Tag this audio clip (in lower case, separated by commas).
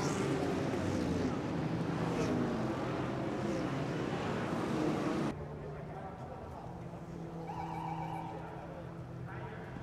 speech